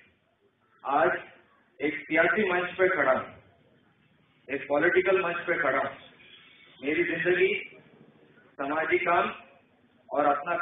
Man is giving a speech